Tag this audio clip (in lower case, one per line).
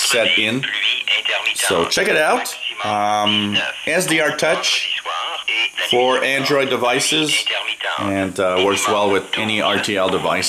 police radio chatter